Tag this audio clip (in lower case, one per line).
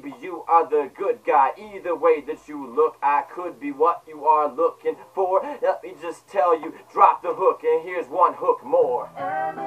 music
inside a small room